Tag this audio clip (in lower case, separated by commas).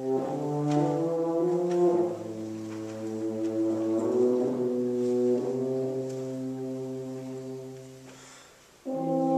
music, brass instrument, orchestra, classical music